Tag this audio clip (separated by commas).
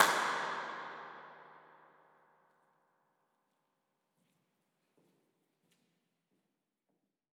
Clapping, Hands